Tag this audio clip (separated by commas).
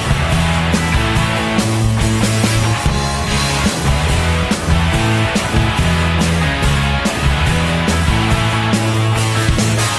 Music